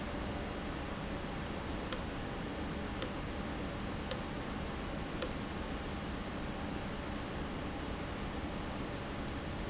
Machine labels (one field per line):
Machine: valve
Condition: abnormal